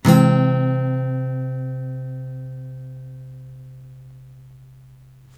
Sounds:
Guitar, Musical instrument, Music, Plucked string instrument, Acoustic guitar

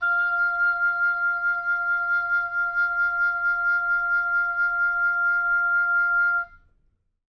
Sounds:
Wind instrument, Musical instrument, Music

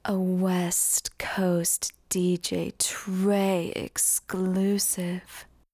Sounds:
Speech, Female speech, Human voice

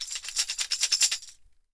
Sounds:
Tambourine, Musical instrument, Percussion, Music

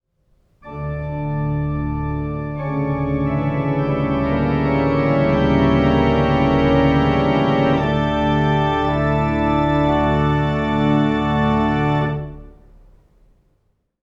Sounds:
Keyboard (musical), Organ, Music, Musical instrument

